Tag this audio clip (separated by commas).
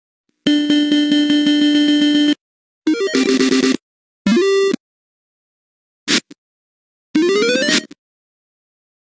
slot machine